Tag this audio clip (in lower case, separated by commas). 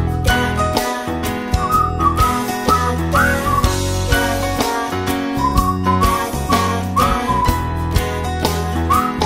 music, singing